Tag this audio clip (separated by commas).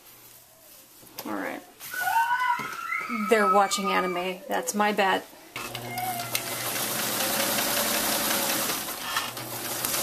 Speech